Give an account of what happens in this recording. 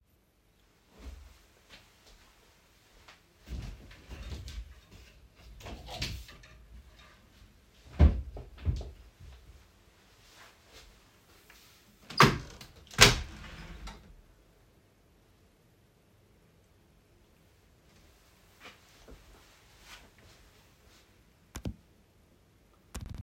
I stored up from my desk, went to pickup a dress from the wardrobe. Then opened the window before sitting back